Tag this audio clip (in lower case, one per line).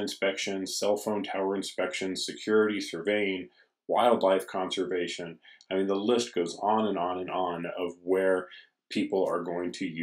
speech